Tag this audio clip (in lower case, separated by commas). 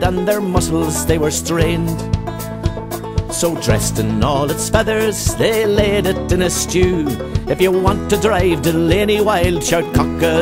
music